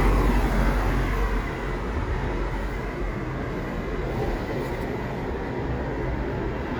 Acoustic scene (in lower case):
street